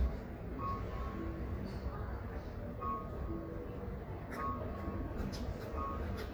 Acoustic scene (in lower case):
residential area